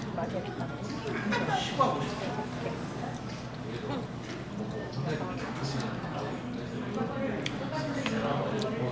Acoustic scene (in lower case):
crowded indoor space